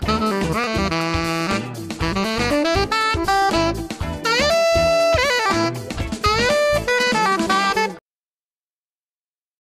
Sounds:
Music

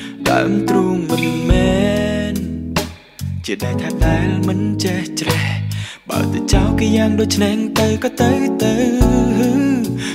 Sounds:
Music

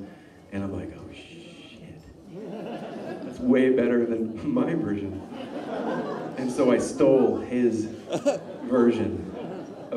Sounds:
speech babble

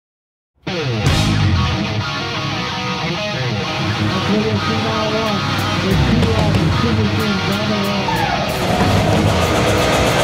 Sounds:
outside, urban or man-made, Speech, Music

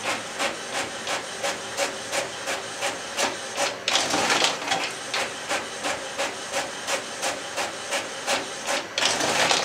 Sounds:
Printer

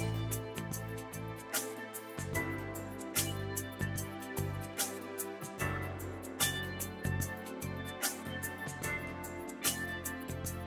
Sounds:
Music

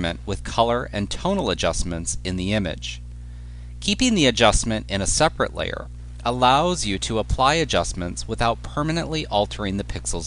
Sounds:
Speech

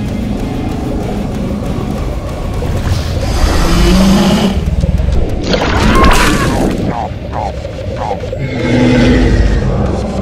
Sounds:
dinosaurs bellowing

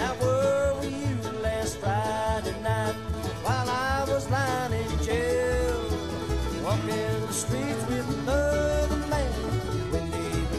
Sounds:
Music

